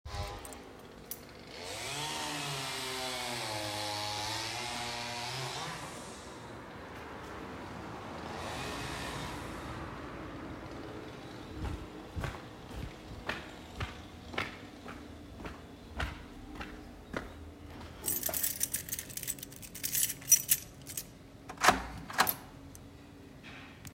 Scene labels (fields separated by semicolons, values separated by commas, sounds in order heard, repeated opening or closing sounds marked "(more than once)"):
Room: hallway; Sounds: footsteps, keys, door